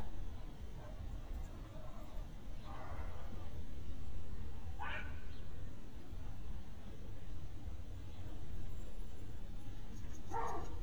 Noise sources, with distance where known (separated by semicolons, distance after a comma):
dog barking or whining, far